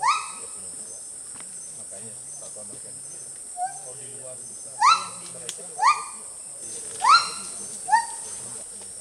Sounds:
gibbon howling

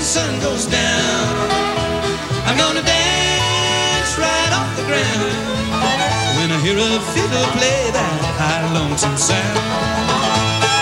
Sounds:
Music

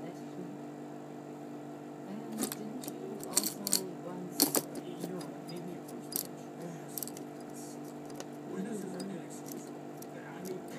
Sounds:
Speech

